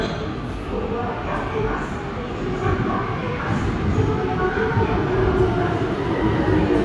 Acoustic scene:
subway station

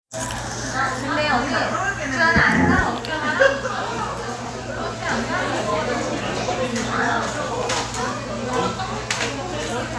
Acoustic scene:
cafe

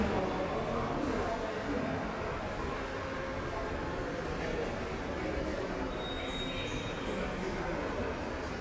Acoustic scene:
subway station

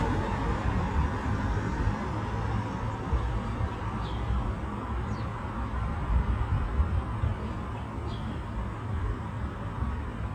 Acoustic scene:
residential area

